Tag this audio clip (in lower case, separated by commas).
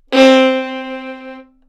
music, bowed string instrument, musical instrument